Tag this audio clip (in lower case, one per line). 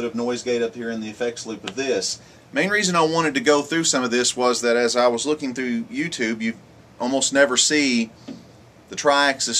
speech